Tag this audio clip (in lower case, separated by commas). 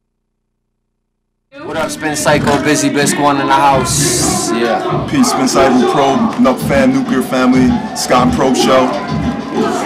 speech, music, heavy metal